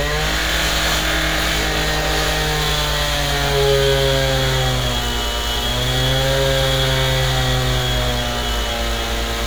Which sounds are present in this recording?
large rotating saw